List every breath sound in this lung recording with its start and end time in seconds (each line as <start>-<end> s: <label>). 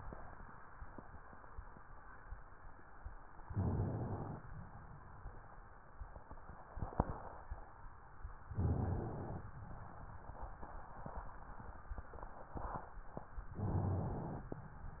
3.47-4.39 s: inhalation
4.41-5.76 s: exhalation
8.52-9.44 s: inhalation
13.58-14.50 s: inhalation